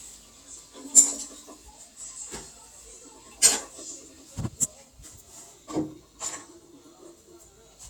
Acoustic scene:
kitchen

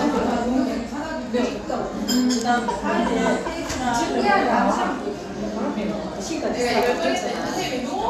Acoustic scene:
crowded indoor space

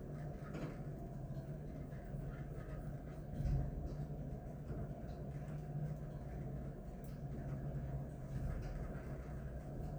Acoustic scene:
elevator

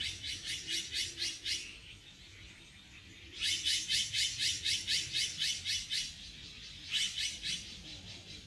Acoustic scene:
park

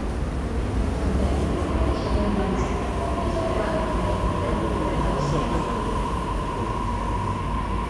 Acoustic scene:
subway station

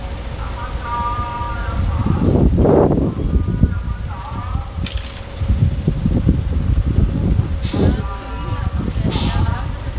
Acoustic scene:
street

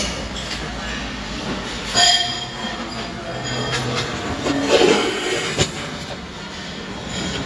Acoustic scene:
restaurant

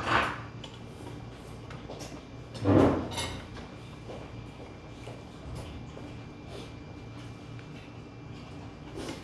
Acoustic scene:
restaurant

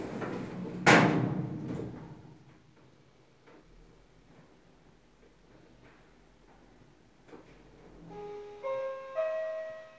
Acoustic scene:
elevator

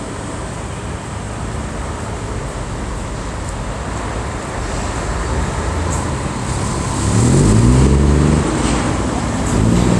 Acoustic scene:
street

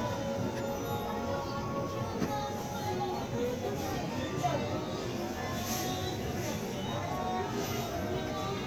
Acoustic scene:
crowded indoor space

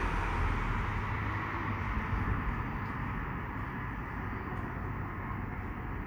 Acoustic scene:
street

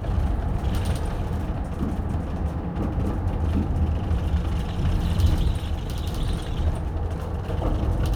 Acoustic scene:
bus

